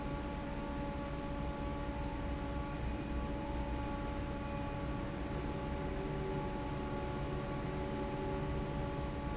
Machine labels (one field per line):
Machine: fan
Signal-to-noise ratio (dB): -6 dB